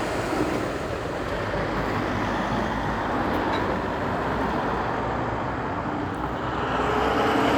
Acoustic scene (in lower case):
street